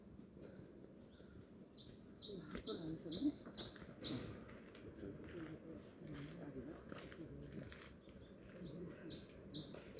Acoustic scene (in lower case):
park